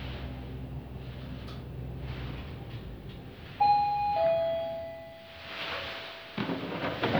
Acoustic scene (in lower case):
elevator